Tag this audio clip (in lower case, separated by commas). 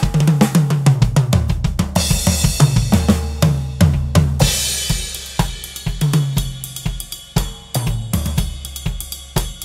drum, rimshot, percussion, drum roll, bass drum, drum kit, snare drum